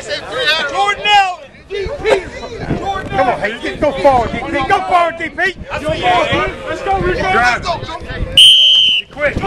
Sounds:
speech

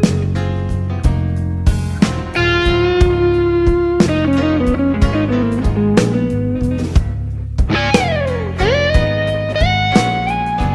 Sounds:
music

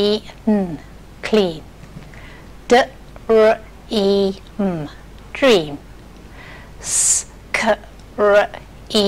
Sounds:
speech

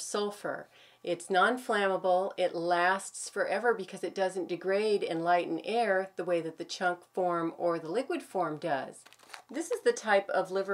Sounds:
speech

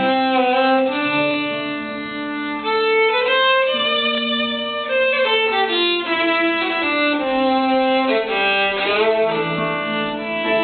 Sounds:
music
musical instrument
fiddle

